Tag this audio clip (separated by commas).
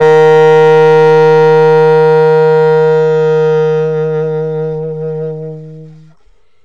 Wind instrument, Music, Musical instrument